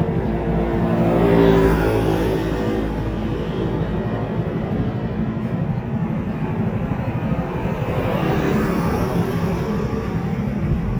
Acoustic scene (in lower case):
street